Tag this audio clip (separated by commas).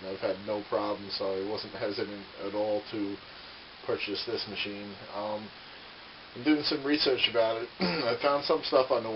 Speech